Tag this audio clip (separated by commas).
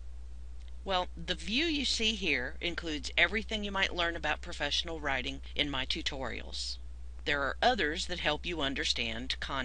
Speech